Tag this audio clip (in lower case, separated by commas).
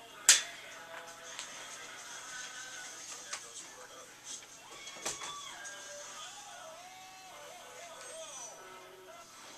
speech, music